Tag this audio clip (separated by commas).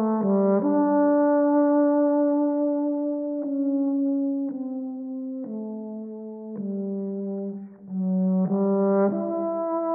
Brass instrument